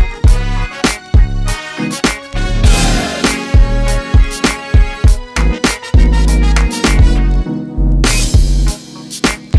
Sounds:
music, soul music

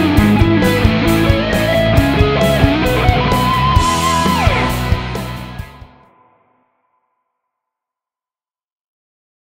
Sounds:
plucked string instrument, electric guitar, rock music, guitar, musical instrument, music

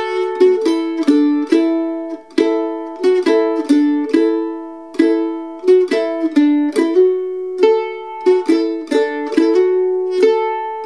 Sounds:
pizzicato, musical instrument, music

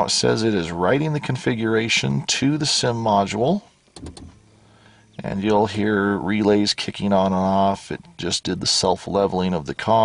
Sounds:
speech

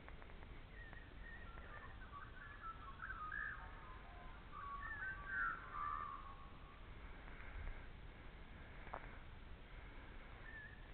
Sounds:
chirp, bird vocalization, bird

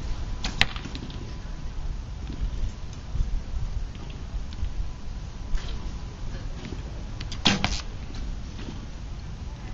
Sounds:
arrow

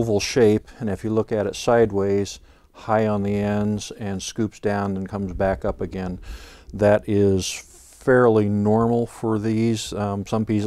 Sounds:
speech

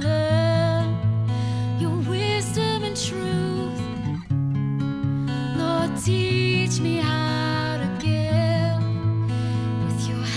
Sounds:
music, theme music, sad music

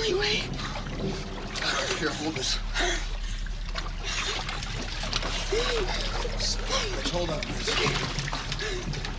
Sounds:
speech, trickle

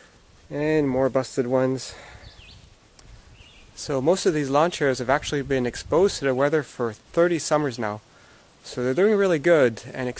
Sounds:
speech

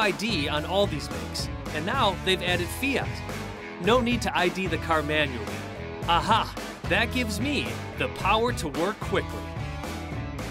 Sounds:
speech, music

